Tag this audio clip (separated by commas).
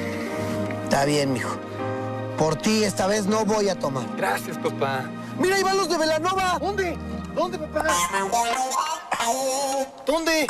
Speech, Music